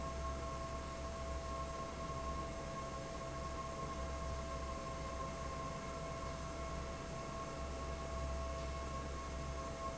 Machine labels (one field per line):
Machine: fan